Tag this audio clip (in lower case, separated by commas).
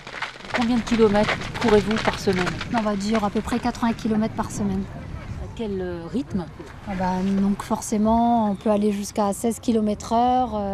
outside, rural or natural, run, speech